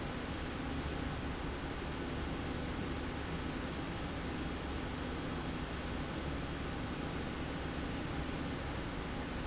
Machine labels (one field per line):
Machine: slide rail